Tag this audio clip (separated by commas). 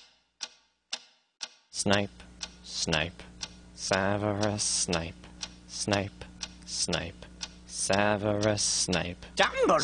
Speech